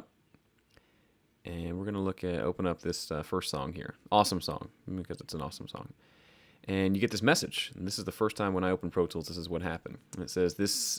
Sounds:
Speech

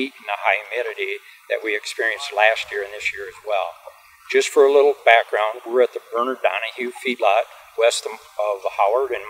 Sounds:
Speech

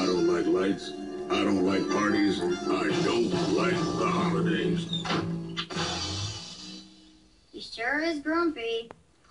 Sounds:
Speech, Music

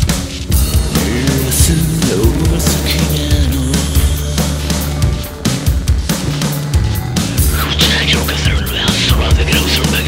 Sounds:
Speech, Music

